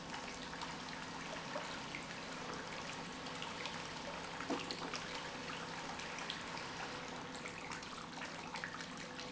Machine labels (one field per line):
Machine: pump